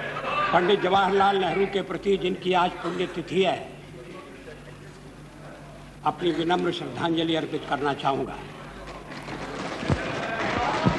Man speaking, crowd of people